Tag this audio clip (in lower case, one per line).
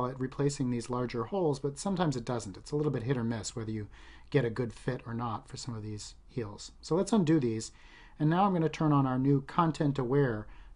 speech